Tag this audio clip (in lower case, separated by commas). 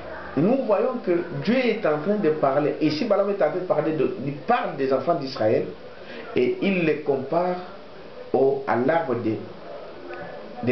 speech, inside a small room